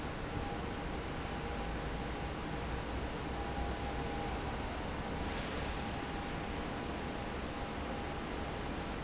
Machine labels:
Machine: fan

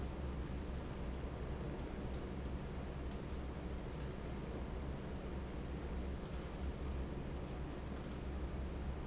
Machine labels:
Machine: fan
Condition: normal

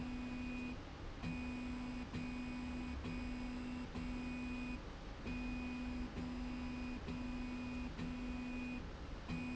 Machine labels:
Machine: slide rail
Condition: normal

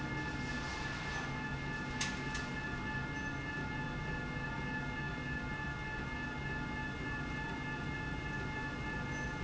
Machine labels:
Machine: slide rail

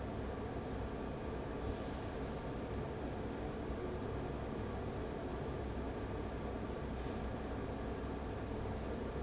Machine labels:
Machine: fan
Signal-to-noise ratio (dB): 0 dB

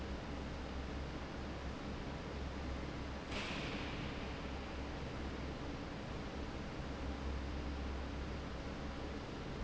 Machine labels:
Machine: fan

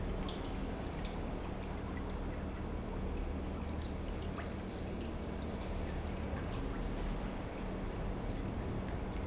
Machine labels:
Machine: pump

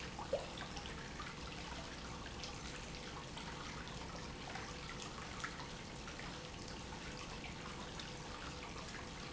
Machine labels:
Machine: pump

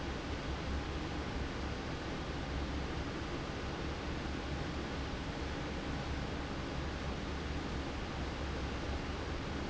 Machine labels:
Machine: fan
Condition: normal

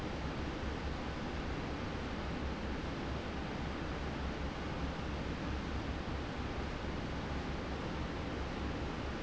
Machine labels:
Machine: fan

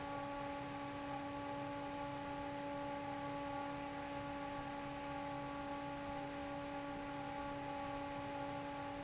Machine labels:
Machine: fan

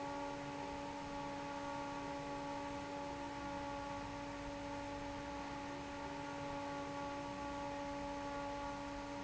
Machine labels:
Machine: fan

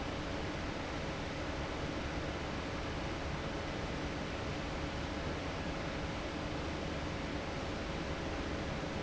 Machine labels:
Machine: fan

